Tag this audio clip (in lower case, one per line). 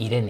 human voice